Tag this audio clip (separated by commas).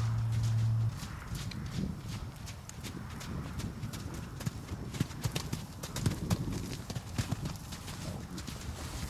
Horse, Animal, livestock